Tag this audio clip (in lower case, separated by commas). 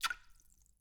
liquid, splash